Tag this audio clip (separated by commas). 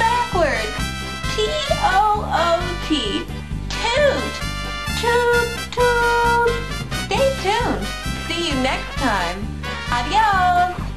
Speech, Music